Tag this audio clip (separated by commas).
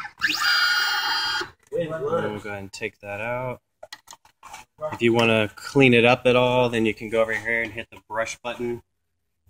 Speech